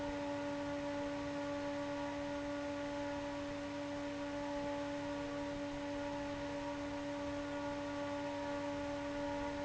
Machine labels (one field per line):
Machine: fan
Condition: abnormal